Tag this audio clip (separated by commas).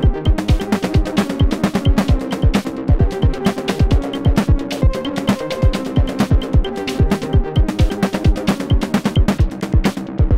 Electronic music, Techno, Musical instrument, Music